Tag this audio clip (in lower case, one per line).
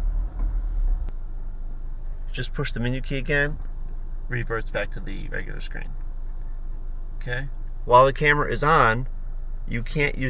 reversing beeps